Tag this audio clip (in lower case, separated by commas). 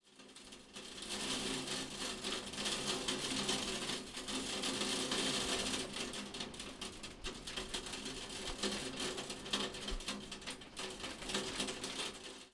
rain, water